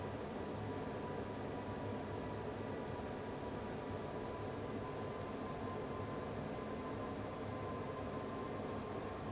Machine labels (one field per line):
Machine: fan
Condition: abnormal